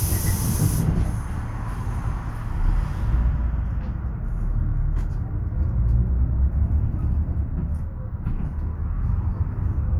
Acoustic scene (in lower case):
bus